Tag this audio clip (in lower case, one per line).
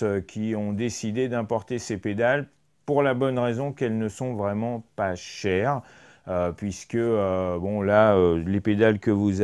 speech